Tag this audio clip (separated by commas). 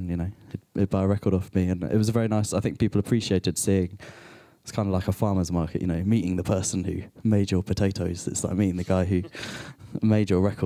Speech